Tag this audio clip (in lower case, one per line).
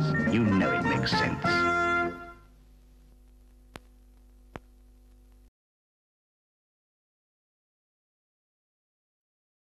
music
speech